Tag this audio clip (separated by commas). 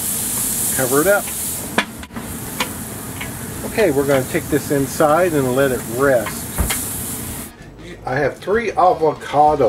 Speech